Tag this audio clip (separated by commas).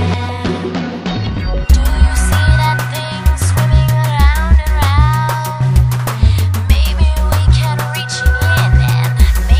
Music